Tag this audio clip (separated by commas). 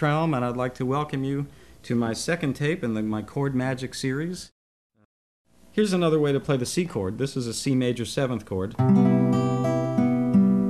Musical instrument, Speech, Music, Guitar, Strum, Plucked string instrument